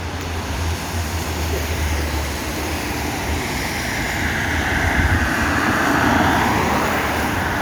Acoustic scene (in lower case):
street